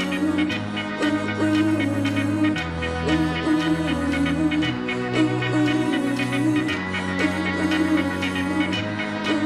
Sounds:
Music, Exciting music

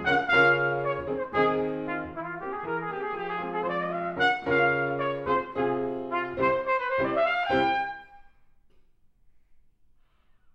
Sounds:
playing cornet

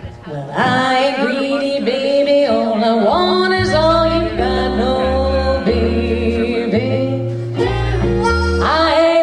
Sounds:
Speech, Music

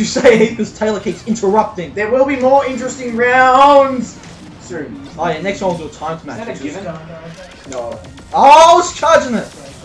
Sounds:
Speech, Music

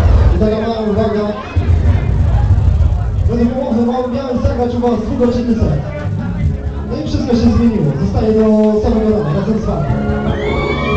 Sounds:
Speech, Music

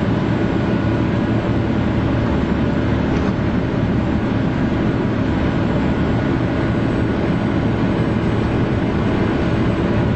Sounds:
Vehicle

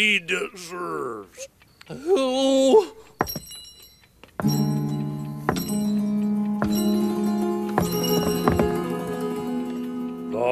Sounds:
Speech, Music, inside a small room

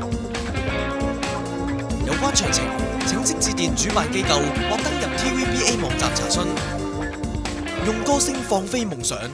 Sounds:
Speech, Music

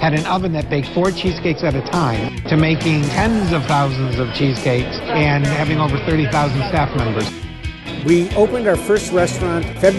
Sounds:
Music, Speech

